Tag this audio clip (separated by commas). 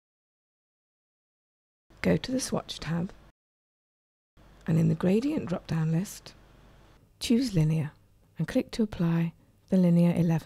Speech